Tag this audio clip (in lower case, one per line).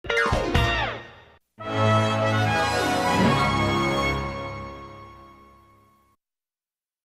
television
music